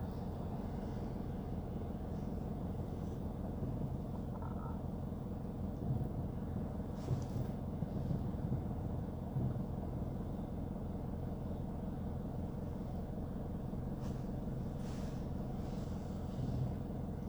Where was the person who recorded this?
in a car